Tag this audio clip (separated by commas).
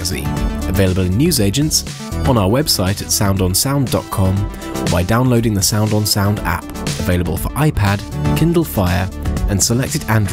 Speech, Music